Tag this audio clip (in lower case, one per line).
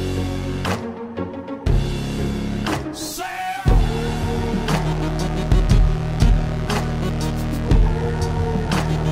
music